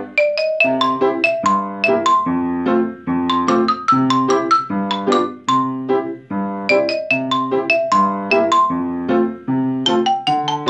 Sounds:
playing glockenspiel

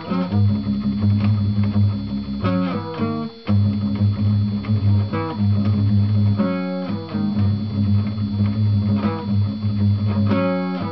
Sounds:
Acoustic guitar, Guitar, Musical instrument, Plucked string instrument

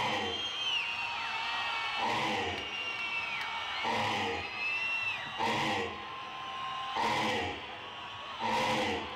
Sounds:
Whoop

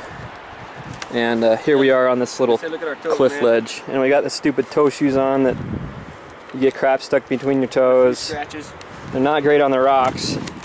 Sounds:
Speech

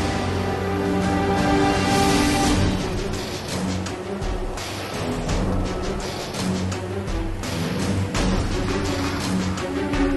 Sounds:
Music

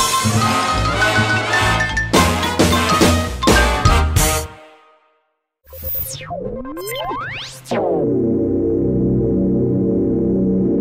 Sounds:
Music

